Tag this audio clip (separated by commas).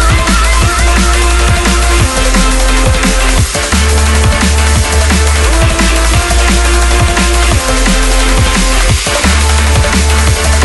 Music